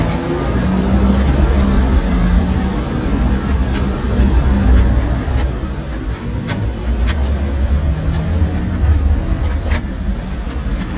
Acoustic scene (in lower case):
street